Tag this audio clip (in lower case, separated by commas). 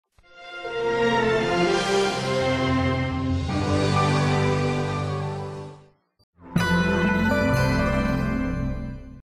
television, music